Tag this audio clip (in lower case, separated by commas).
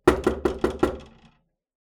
domestic sounds, knock, door